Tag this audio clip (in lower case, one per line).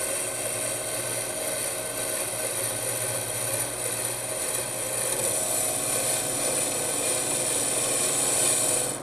lathe spinning